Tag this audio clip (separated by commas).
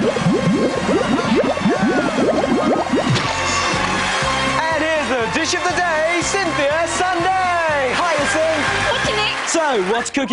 Music, Speech